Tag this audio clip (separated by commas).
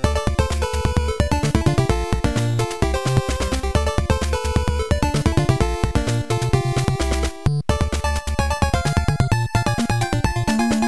Soundtrack music